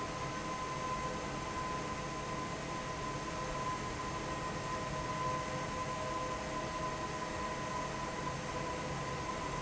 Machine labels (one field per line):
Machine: fan